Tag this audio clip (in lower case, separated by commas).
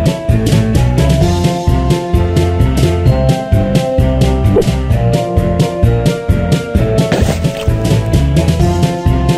music